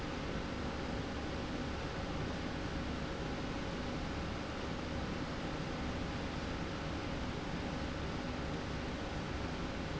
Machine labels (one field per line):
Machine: slide rail